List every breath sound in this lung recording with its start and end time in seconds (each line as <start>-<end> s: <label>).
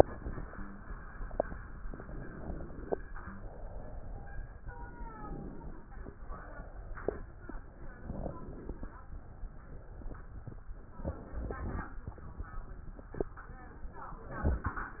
2.97-4.56 s: exhalation
4.56-6.06 s: inhalation
6.04-7.34 s: exhalation
7.77-9.08 s: inhalation
9.08-10.73 s: exhalation
10.75-12.08 s: inhalation